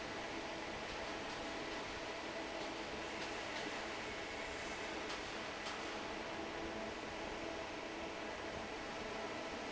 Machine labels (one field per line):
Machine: fan